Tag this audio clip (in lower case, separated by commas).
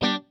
musical instrument, guitar, plucked string instrument, music